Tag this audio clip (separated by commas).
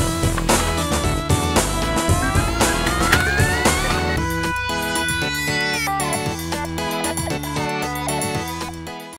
Printer, Music